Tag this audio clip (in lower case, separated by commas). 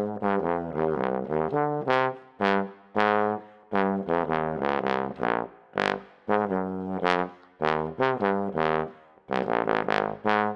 playing trombone